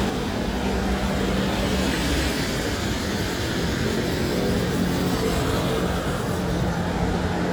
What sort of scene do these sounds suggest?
street